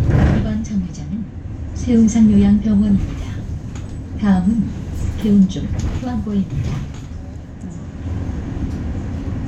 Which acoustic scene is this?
bus